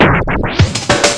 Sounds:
scratching (performance technique), music, musical instrument

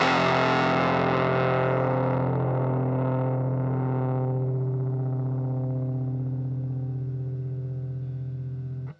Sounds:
music, plucked string instrument, musical instrument, guitar

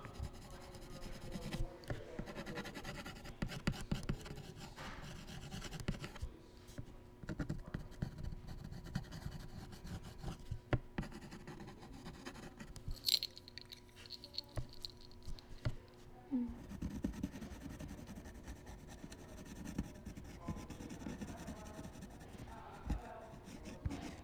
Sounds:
writing, domestic sounds

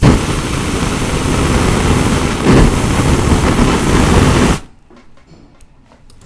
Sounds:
fire

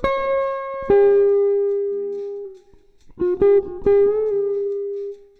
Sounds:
music, plucked string instrument, guitar, musical instrument

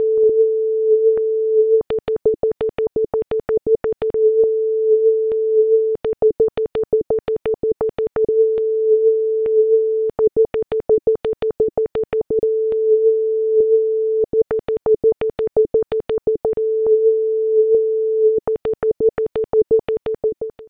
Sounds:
alarm, telephone

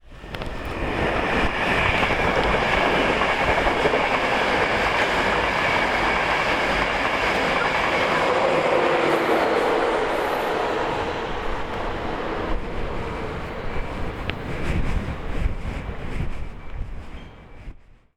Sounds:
rail transport, vehicle, train

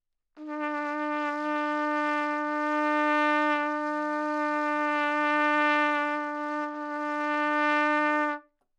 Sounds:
musical instrument, trumpet, music, brass instrument

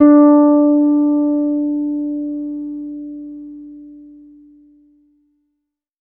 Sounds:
music, plucked string instrument, bass guitar, guitar, musical instrument

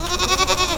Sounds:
animal, livestock

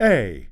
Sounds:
human voice, speech, male speech

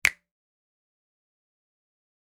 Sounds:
finger snapping, hands

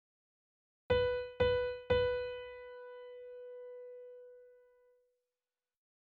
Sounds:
musical instrument, keyboard (musical), music, piano

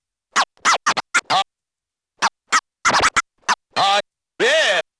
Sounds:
scratching (performance technique), music, musical instrument

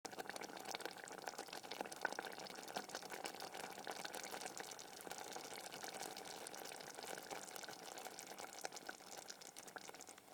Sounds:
liquid, boiling

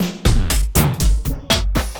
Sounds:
music, musical instrument, percussion, drum kit

